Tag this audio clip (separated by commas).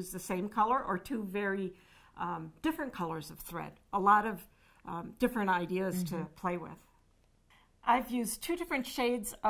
Speech